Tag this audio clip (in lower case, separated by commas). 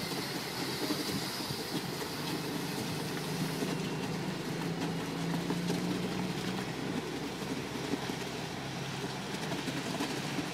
truck, vehicle